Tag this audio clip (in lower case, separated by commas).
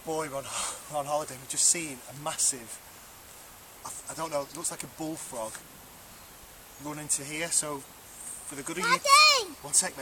speech